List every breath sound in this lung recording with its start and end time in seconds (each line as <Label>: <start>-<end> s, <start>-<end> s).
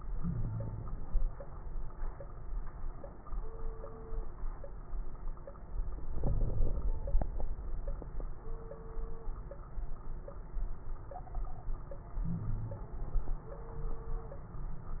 Inhalation: 0.14-1.19 s, 6.05-6.92 s, 12.20-12.95 s
Wheeze: 0.14-0.99 s, 6.24-6.78 s, 12.22-12.92 s